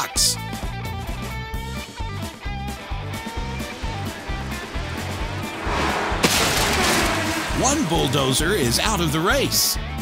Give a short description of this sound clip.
Music playing followed by humming engines then a smack and a man speaking